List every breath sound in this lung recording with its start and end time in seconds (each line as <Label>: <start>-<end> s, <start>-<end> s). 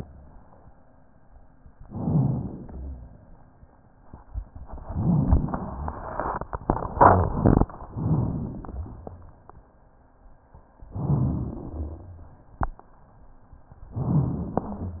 Inhalation: 1.87-2.67 s, 10.96-11.64 s, 13.96-14.64 s
Exhalation: 2.67-3.35 s, 11.71-12.39 s
Rhonchi: 2.67-3.35 s, 11.71-12.39 s, 13.96-14.64 s